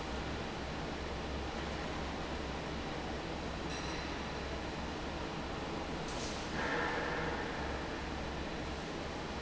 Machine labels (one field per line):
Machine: fan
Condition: abnormal